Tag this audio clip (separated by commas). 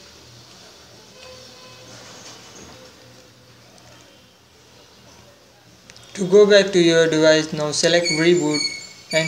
Speech